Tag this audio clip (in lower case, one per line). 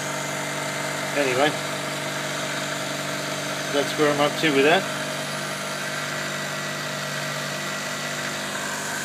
power tool
speech